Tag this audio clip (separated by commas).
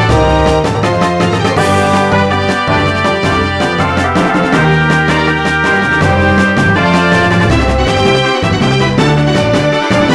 Music